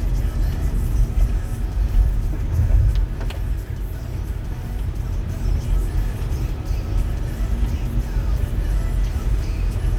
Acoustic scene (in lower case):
car